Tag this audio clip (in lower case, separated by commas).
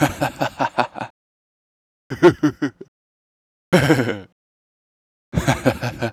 human voice, laughter